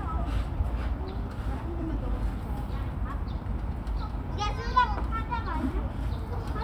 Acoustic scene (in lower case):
park